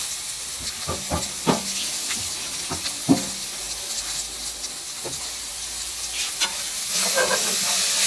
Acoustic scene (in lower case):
kitchen